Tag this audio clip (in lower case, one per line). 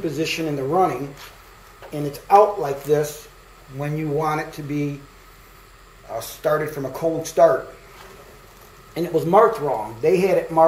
speech